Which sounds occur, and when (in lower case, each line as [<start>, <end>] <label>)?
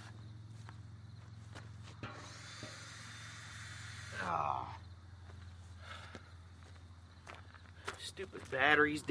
[0.00, 0.12] walk
[0.00, 9.10] cricket
[0.00, 9.10] mechanisms
[0.49, 0.72] walk
[1.08, 1.30] walk
[1.45, 1.59] walk
[1.96, 4.30] drill
[1.97, 2.14] generic impact sounds
[2.56, 2.74] generic impact sounds
[4.09, 4.79] human voice
[5.21, 5.60] walk
[5.73, 6.50] breathing
[6.56, 6.75] walk
[7.21, 7.48] walk
[7.22, 7.41] breathing
[7.70, 8.11] breathing
[7.79, 7.97] walk
[8.13, 8.43] walk
[8.46, 9.10] man speaking
[8.91, 9.06] walk